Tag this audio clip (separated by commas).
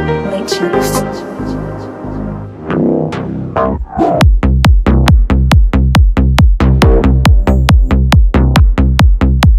Speech, Music